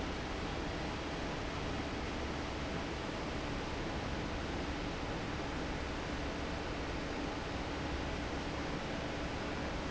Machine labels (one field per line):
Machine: fan